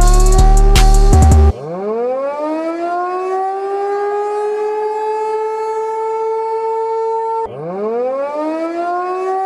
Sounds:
civil defense siren

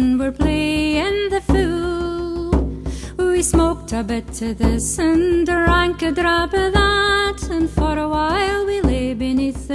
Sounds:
Female singing, Music

